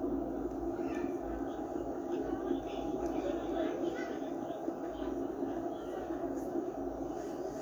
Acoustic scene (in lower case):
park